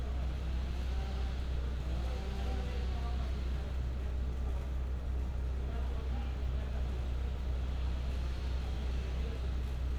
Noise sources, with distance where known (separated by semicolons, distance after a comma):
unidentified powered saw